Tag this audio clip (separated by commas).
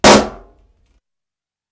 Explosion